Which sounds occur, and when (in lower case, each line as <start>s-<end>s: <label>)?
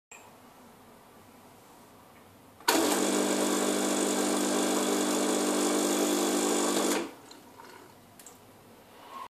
0.0s-9.2s: mechanisms
0.1s-0.2s: generic impact sounds
2.0s-2.1s: generic impact sounds
2.6s-2.7s: generic impact sounds
4.1s-8.5s: liquid
6.7s-7.0s: generic impact sounds
7.1s-7.3s: generic impact sounds
7.5s-7.8s: generic impact sounds
8.2s-8.4s: generic impact sounds
9.0s-9.2s: generic impact sounds